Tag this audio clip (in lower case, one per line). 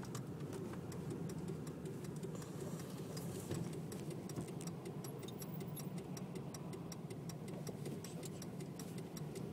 vehicle